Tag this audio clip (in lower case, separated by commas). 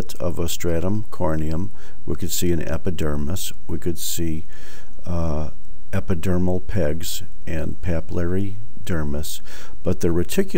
speech